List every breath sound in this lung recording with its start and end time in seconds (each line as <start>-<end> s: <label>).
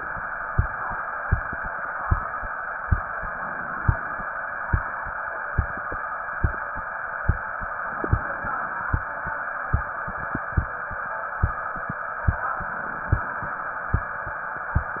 3.17-4.27 s: inhalation
7.87-8.98 s: inhalation
12.47-13.57 s: inhalation